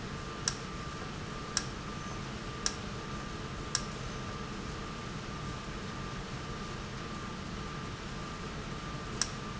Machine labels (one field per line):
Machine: valve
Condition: normal